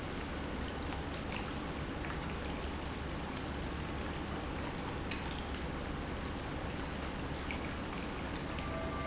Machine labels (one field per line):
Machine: pump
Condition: normal